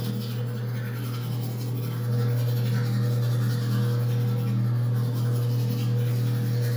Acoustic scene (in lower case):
restroom